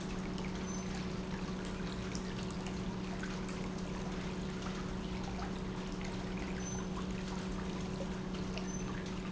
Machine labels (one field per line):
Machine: pump